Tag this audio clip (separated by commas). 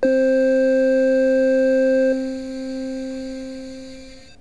Music, Musical instrument, Keyboard (musical)